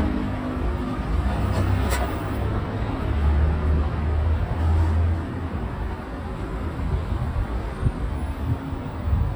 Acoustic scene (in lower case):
street